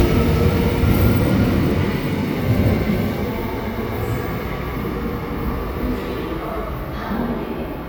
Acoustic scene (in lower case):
subway station